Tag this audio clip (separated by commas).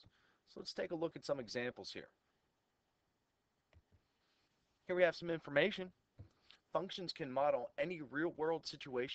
Speech